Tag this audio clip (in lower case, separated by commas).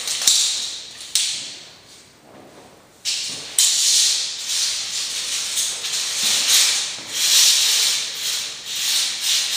inside a small room